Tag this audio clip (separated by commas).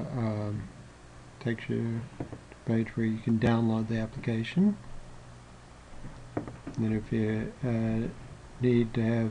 Speech